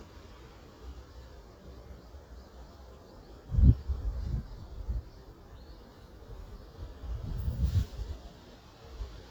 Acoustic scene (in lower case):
park